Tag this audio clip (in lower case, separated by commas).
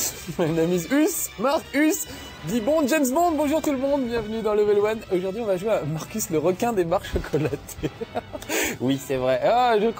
music, speech